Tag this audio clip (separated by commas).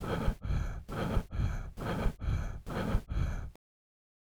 Breathing, Respiratory sounds